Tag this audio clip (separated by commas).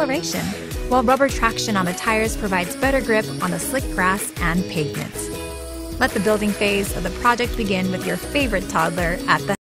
Speech, Music